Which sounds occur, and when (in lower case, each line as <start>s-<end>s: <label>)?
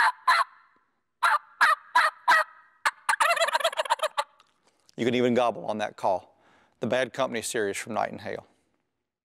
2.8s-4.2s: human sounds
4.3s-5.0s: generic impact sounds
6.4s-6.8s: breathing
6.8s-8.4s: man speaking